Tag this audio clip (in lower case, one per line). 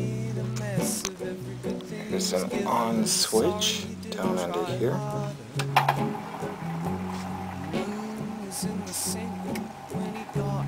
speech
music